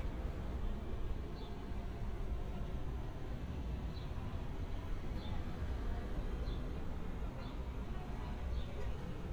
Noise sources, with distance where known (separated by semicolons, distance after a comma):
person or small group talking, far